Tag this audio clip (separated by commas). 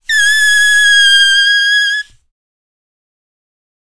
Squeak